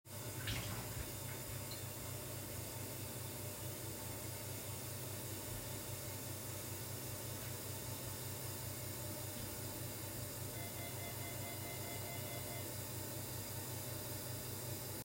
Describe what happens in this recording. I let the water run in the kitchen when the door bell suddenly rings.